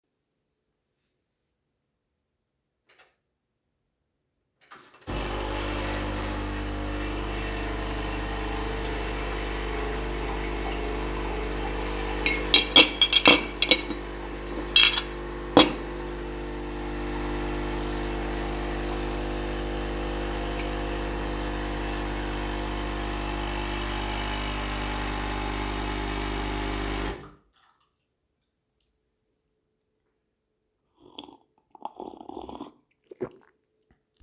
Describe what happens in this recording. I turned on the coffee machine, prepared some dishes and took a sip of the coffee afterwards